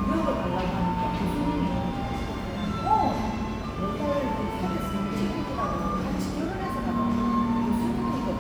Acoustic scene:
cafe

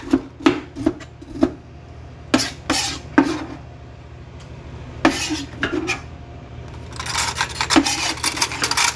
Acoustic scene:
kitchen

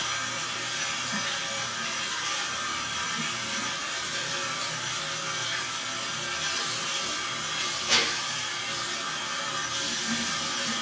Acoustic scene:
restroom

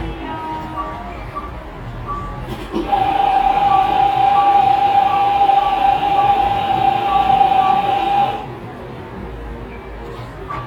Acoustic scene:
cafe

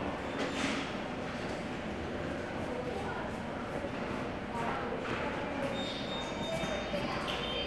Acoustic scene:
subway station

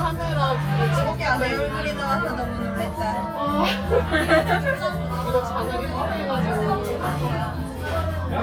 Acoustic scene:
crowded indoor space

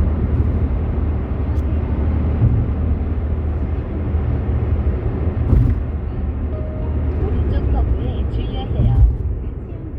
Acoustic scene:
car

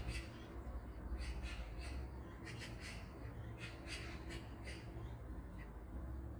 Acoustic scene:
park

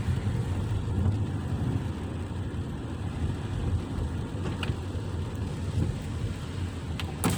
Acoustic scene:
car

